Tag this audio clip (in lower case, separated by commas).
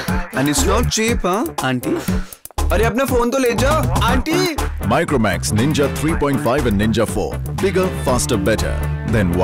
speech, music